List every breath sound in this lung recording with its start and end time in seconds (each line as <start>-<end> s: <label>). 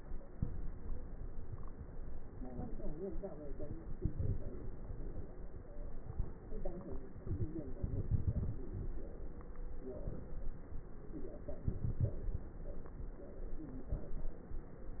3.84-4.87 s: inhalation
3.84-4.87 s: crackles
5.38-6.33 s: stridor
7.76-9.11 s: inhalation
7.76-9.11 s: crackles
10.97-12.56 s: inhalation
10.97-12.56 s: crackles